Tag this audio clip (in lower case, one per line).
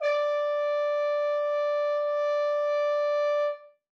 music
brass instrument
musical instrument